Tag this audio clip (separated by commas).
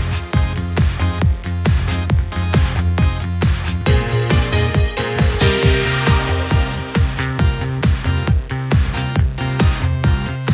Music